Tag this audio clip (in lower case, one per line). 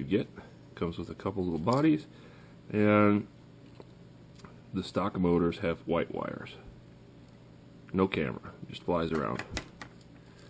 speech